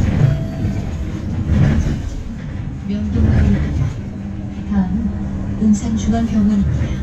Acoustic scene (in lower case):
bus